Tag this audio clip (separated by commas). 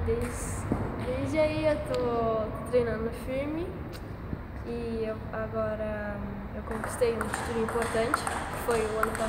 playing table tennis